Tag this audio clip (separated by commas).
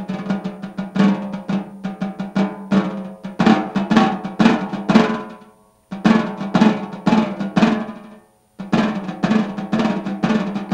playing snare drum